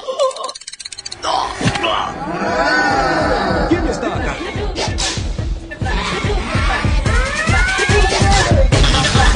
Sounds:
inside a large room or hall, Speech, Music

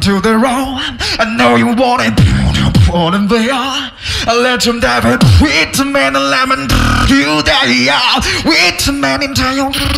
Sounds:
Music

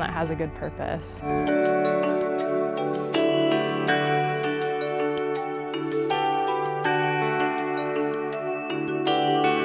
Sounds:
Speech, Music

